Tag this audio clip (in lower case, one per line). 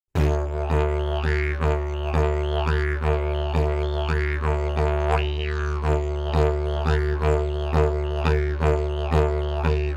playing didgeridoo